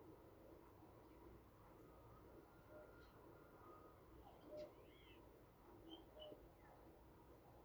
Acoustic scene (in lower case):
park